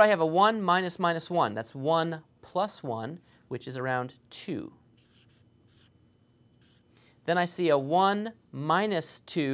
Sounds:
writing, speech

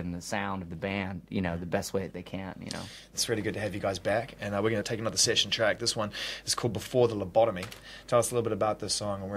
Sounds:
speech

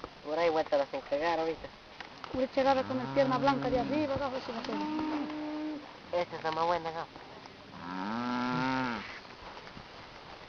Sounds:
livestock, animal, speech

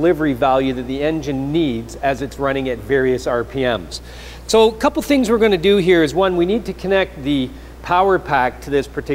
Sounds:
speech

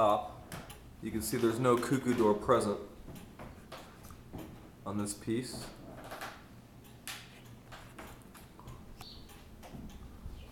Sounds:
speech

